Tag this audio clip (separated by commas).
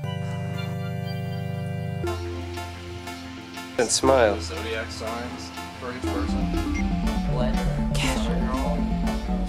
Speech, Music